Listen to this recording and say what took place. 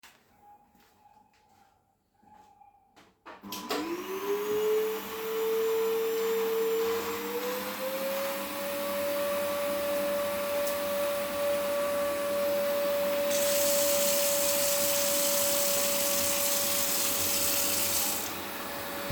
I started vacuuming the kitchen floor. While the vacuum was still running, I turned on the faucet.